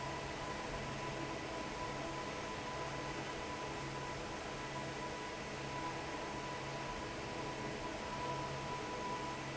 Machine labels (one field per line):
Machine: fan